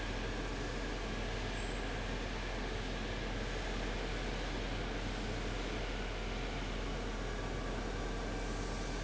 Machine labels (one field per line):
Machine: fan